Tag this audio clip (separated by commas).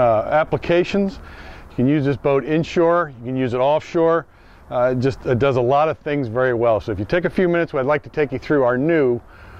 Speech